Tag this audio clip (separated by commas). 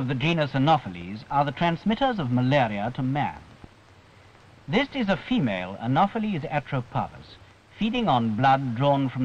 Speech